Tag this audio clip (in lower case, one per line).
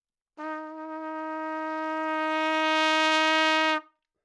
brass instrument
music
trumpet
musical instrument